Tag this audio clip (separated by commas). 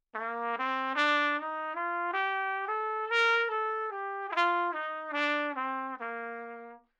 Music, Trumpet, Musical instrument, Brass instrument